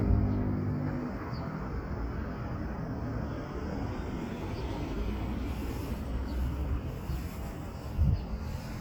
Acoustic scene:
street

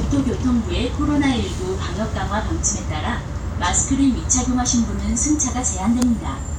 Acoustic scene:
bus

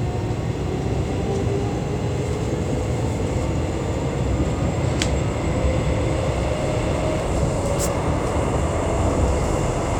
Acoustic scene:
subway train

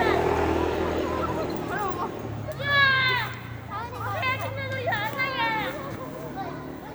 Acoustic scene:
residential area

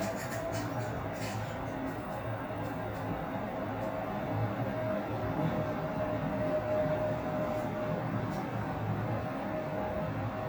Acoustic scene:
elevator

